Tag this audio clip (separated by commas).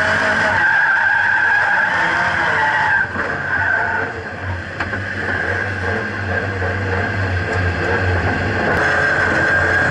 Skidding, Car, Motor vehicle (road), Vehicle, Race car